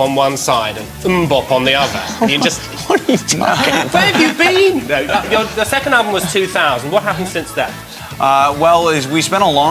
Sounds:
music, speech

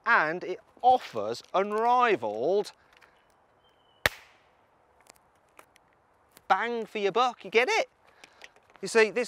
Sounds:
speech

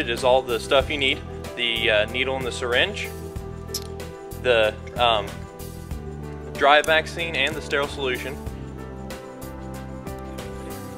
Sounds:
music, speech

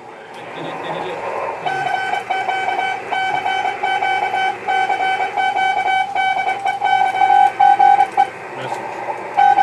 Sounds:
speech

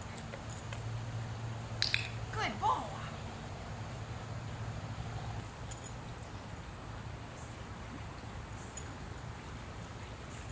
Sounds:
speech, outside, rural or natural

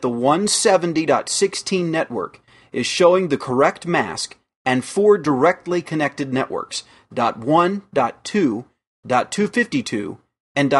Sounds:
speech

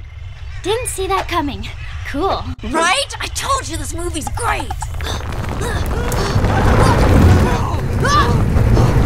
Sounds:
child speech, speech

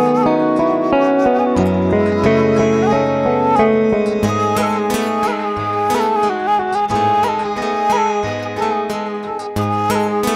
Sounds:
woodwind instrument

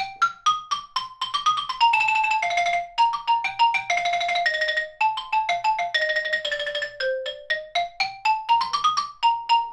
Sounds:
playing glockenspiel

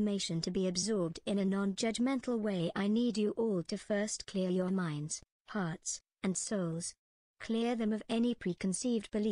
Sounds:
speech

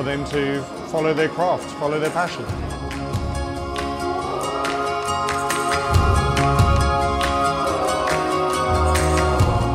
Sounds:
speech, music

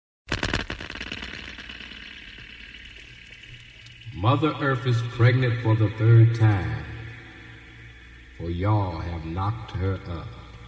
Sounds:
outside, rural or natural, speech

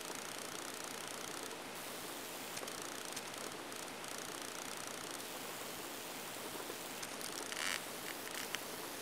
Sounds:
rustle

